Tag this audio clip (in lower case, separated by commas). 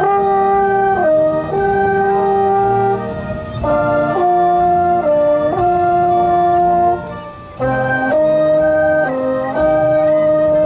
playing french horn